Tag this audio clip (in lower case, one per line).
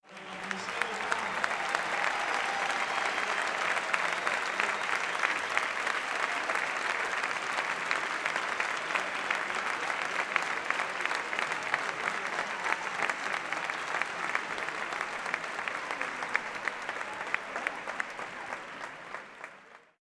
human group actions
applause